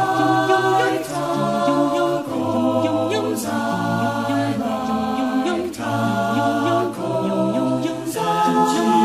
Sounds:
Music

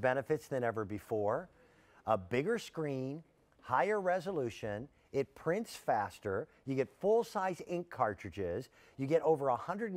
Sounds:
Speech

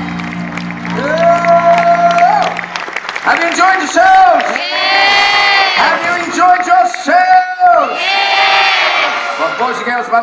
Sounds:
Speech, inside a large room or hall

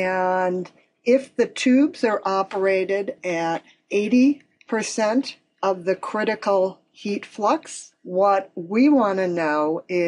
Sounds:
Speech

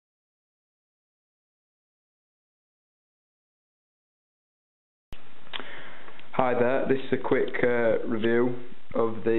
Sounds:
Speech

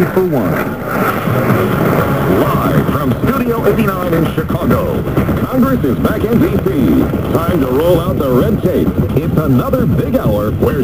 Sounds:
Music, Radio, Speech

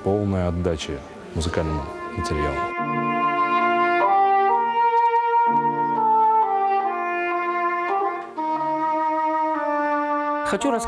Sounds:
Music, Clarinet, Speech, woodwind instrument

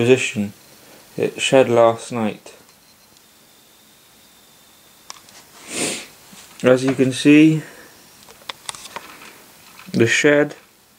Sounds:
Speech

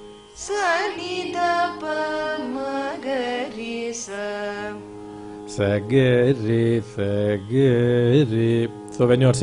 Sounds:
Music, Speech, Carnatic music, Traditional music

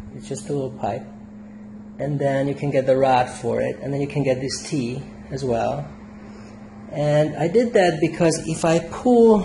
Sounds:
Speech

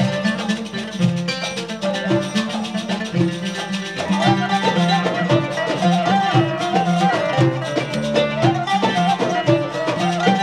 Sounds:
Music

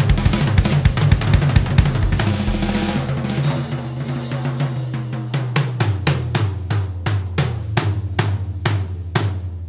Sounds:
Music

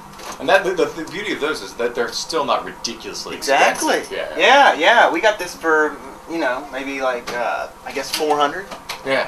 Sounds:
Speech

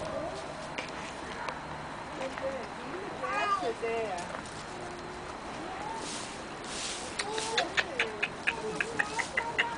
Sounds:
Speech, inside a small room

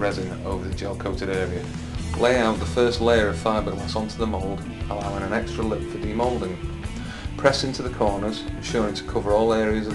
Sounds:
Music, Speech

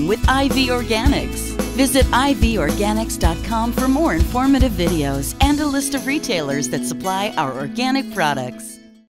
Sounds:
Speech, Music

